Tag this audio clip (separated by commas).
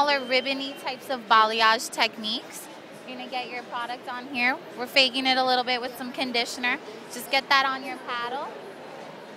Speech